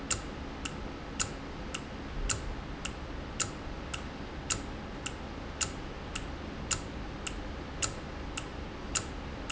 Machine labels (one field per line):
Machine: valve